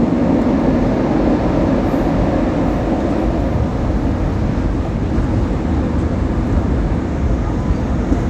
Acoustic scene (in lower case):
subway train